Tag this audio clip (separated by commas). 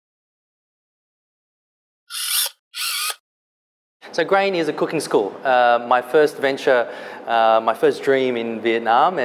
Speech